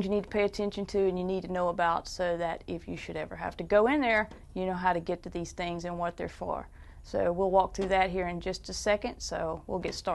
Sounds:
Speech

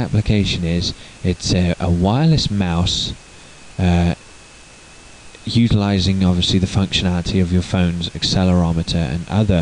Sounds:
Speech

